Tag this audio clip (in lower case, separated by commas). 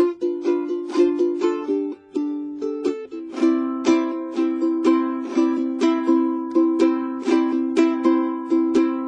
music, ukulele